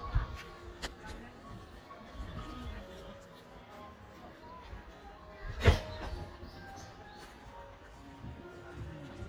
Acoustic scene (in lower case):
park